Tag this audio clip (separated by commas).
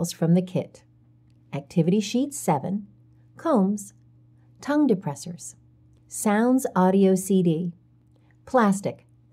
Speech